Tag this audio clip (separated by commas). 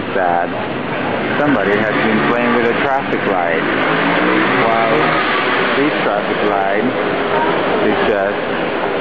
roadway noise, Speech